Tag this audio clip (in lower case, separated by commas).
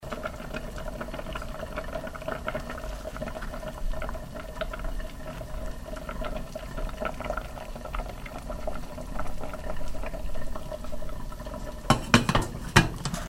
boiling, liquid